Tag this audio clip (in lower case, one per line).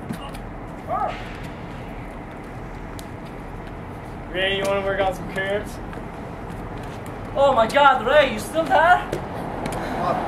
speech